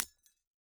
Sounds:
glass, hammer, tools, shatter

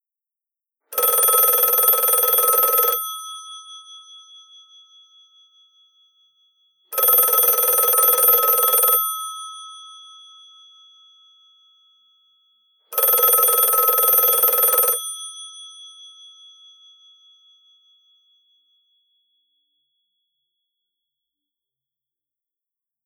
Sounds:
alarm, telephone

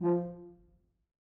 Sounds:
brass instrument, music, musical instrument

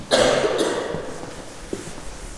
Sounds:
respiratory sounds, cough

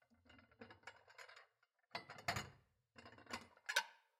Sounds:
dishes, pots and pans, domestic sounds

